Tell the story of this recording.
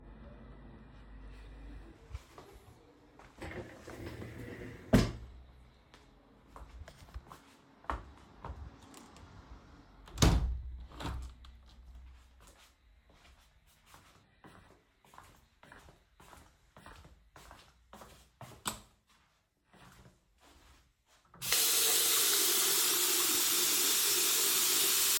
I stood up from the chair, closed the window, went to the bathroom, and turned on the water.